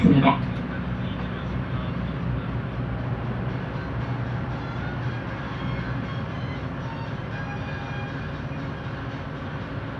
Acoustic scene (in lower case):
bus